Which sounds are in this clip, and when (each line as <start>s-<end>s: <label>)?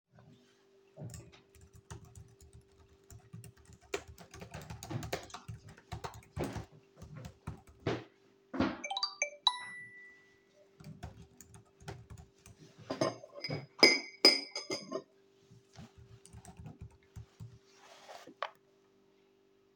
1.1s-7.8s: keyboard typing
7.8s-8.8s: footsteps
8.9s-10.3s: phone ringing
10.8s-12.9s: keyboard typing
12.9s-15.1s: cutlery and dishes
16.1s-17.6s: keyboard typing